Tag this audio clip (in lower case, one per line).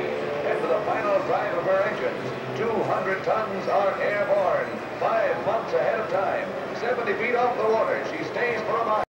speech